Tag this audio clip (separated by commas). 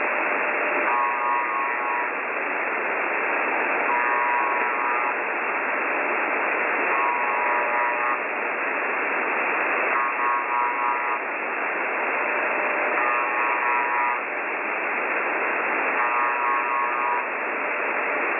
Alarm